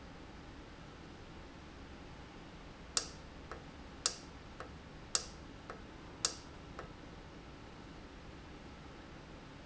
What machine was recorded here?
valve